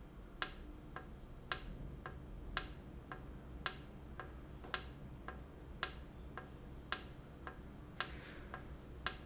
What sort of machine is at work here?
valve